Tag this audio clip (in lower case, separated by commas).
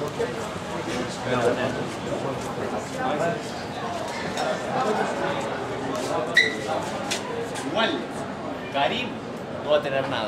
speech